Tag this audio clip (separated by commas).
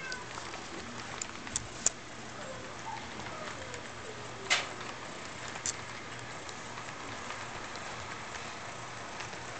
Speech